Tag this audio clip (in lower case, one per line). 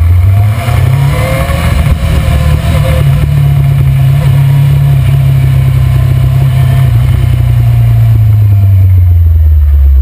motorcycle
vehicle